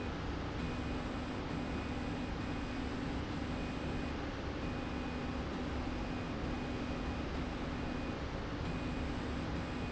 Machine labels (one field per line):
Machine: slide rail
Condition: normal